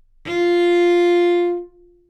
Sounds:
Bowed string instrument, Musical instrument, Music

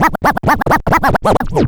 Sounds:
Musical instrument, Scratching (performance technique), Music

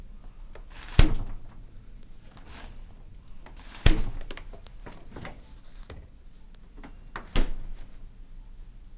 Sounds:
Door, Domestic sounds

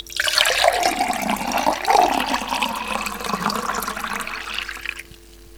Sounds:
Liquid, Fill (with liquid)

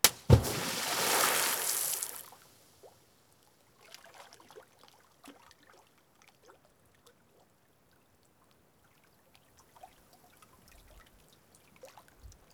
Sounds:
Liquid, Splash

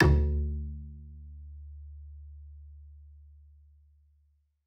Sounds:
Bowed string instrument, Music, Musical instrument

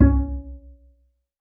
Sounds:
Musical instrument, Music, Bowed string instrument

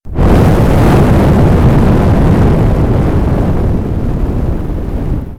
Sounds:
Fire

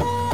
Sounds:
Mechanisms, Printer

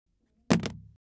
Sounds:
Alarm, Telephone

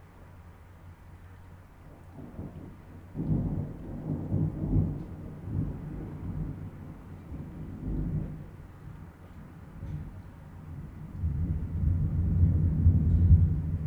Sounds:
Thunderstorm, Thunder

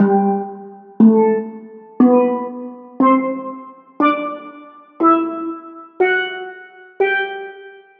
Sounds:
Music, Musical instrument, Percussion

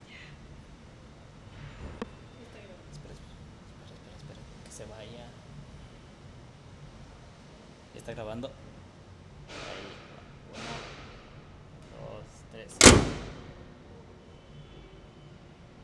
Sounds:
Vehicle, Motor vehicle (road)

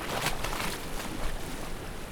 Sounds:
Water, Ocean, surf

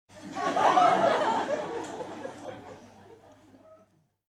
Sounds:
Human voice, Laughter

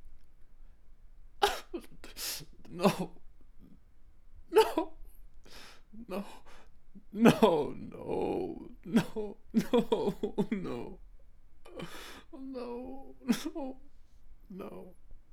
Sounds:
sobbing, Human voice

